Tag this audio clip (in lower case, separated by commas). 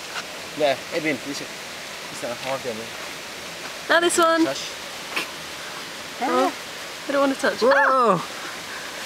pink noise